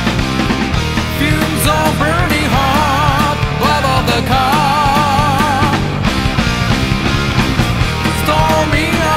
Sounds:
music, soundtrack music, jazz

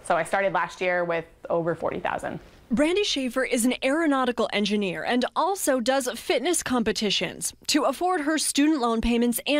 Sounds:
speech

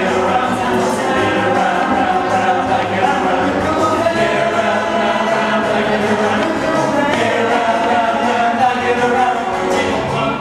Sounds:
crowd, music, choir, rock music

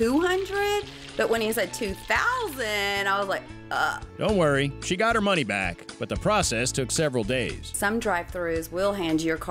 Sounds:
music, speech

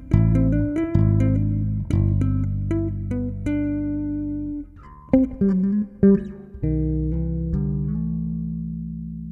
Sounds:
plucked string instrument, musical instrument, playing bass guitar, electronic tuner, bass guitar, music, guitar

